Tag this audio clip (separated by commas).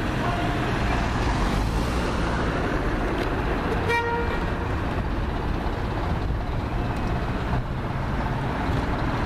Bus, Vehicle, driving buses